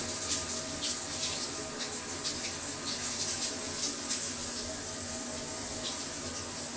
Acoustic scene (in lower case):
restroom